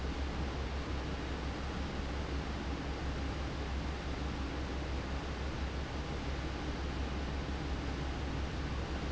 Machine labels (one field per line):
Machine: fan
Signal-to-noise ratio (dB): -6 dB